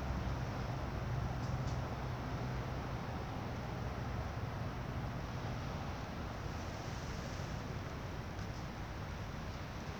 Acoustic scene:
residential area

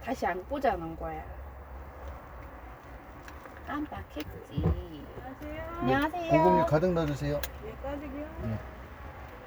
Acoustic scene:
car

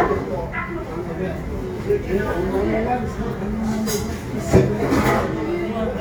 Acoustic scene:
crowded indoor space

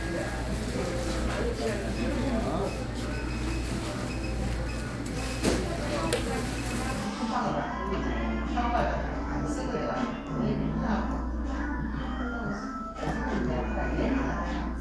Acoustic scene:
crowded indoor space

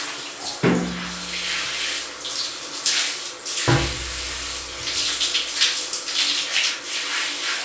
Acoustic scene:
restroom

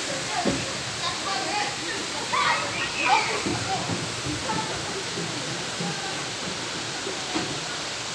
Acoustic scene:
park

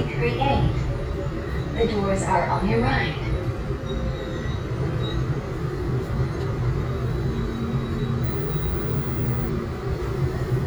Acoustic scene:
subway train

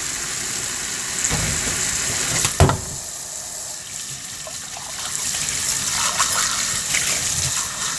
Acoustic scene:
kitchen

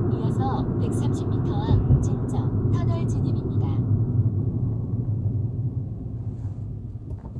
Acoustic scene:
car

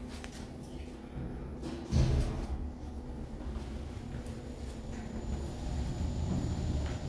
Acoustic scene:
elevator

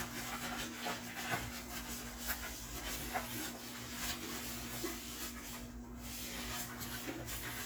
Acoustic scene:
kitchen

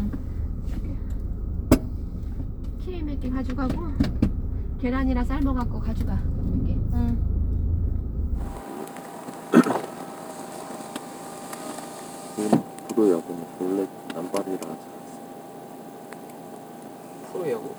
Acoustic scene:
car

